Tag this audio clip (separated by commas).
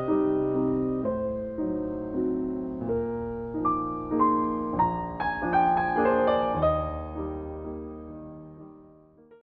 Music